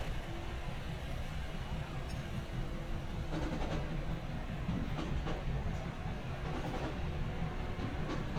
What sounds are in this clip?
medium-sounding engine, music from a fixed source